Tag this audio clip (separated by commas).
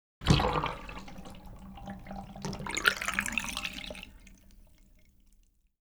Water, Bathtub (filling or washing), Domestic sounds